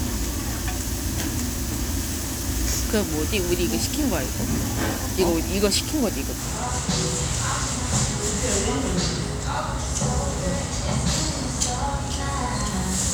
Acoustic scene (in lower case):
restaurant